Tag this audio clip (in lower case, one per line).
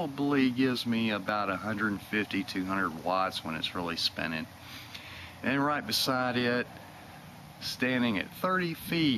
speech